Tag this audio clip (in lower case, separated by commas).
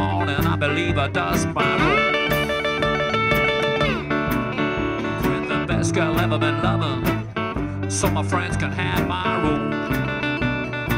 music, outside, urban or man-made, musical instrument